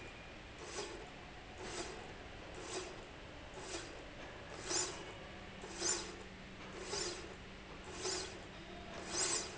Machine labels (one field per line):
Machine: slide rail